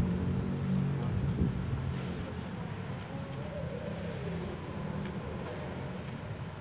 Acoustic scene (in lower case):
residential area